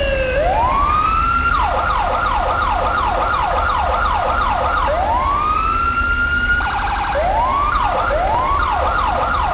Emergency vehicle siren